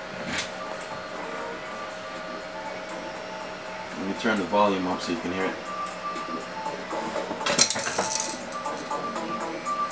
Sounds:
inside a small room, speech, music

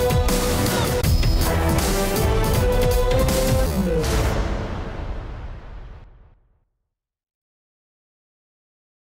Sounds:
sound effect, music

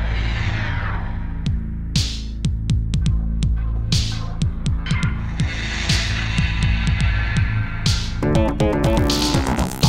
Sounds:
music

